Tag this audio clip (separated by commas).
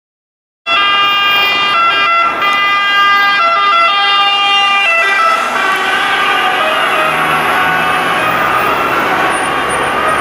ambulance siren